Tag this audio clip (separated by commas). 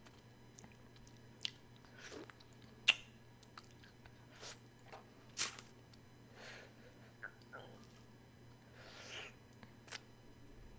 people slurping